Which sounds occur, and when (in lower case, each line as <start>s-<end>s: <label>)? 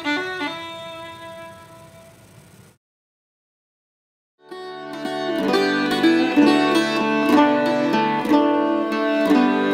0.0s-2.2s: music
0.0s-2.8s: mechanisms
4.4s-9.7s: music